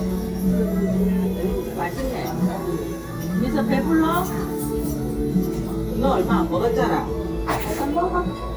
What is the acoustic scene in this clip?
crowded indoor space